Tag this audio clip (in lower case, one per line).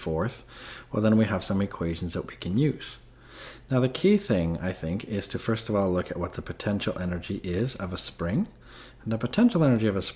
speech